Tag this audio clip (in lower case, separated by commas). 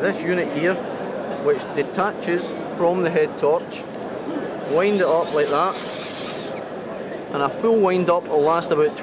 speech